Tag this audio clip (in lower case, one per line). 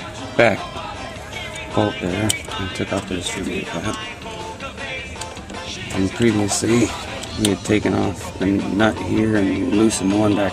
speech
music